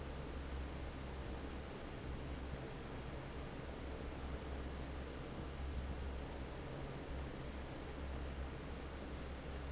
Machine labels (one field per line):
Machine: fan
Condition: normal